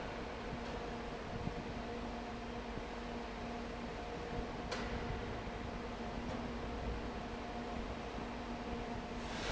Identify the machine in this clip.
fan